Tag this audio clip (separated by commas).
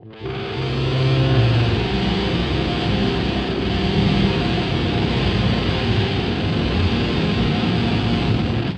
Music, Musical instrument, Plucked string instrument, Guitar